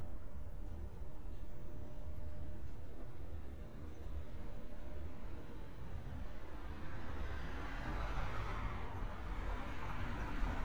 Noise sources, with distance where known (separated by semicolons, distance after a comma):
engine of unclear size, near